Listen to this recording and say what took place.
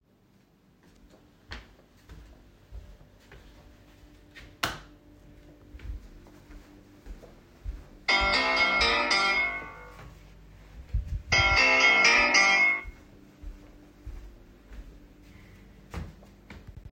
I walked through the hallway toward the living room while carrying the device. During the movement, I switched the light. A phone ringing occurred while I was still moving.